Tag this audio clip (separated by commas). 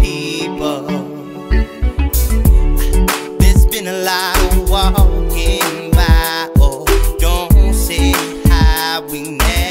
Music